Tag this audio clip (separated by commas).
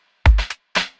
Musical instrument, Percussion, Music, Drum kit